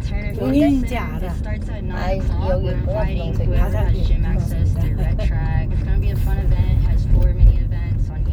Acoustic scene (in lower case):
car